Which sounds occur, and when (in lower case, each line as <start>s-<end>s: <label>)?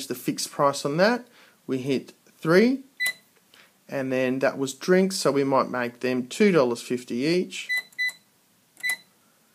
0.0s-1.2s: man speaking
0.0s-9.5s: mechanisms
1.2s-1.6s: breathing
1.6s-2.1s: man speaking
2.4s-2.9s: man speaking
3.0s-3.1s: generic impact sounds
3.0s-3.2s: keypress tone
3.3s-3.4s: tick
3.5s-3.7s: generic impact sounds
3.9s-7.6s: man speaking
7.7s-7.8s: keypress tone
7.7s-7.8s: generic impact sounds
8.0s-8.2s: keypress tone
8.0s-8.2s: generic impact sounds
8.8s-9.0s: generic impact sounds
8.8s-9.0s: keypress tone
9.0s-9.5s: breathing